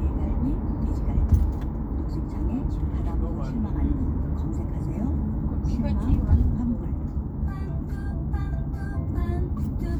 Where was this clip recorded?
in a car